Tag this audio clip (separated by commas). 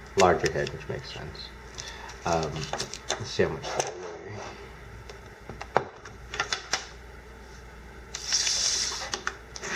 Speech